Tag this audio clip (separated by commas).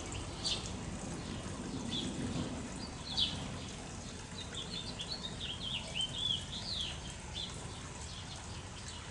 Bird, dove